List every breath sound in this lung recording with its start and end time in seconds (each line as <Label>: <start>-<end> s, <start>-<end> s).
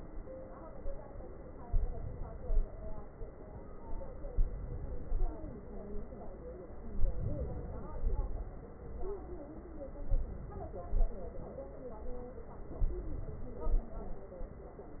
Inhalation: 1.63-2.66 s, 4.31-5.32 s, 6.99-8.00 s, 10.07-10.94 s, 12.82-13.68 s
Exhalation: 2.66-3.29 s, 8.00-8.80 s, 10.94-11.61 s, 13.68-14.35 s